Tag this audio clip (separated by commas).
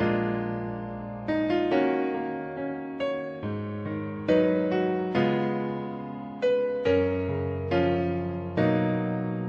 Music